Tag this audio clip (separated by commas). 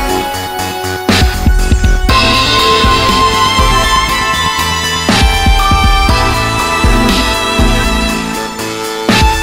Music